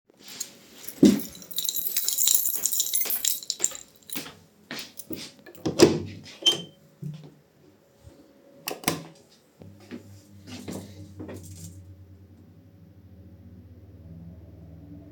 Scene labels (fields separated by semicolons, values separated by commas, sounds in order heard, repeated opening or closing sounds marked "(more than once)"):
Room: living room; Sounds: keys, footsteps, door, light switch